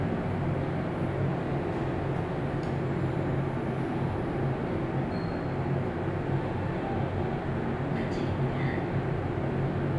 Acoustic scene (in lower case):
elevator